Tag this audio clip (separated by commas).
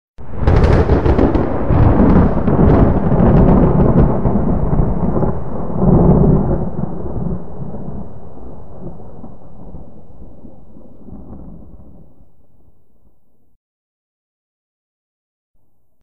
Thunderstorm, Thunder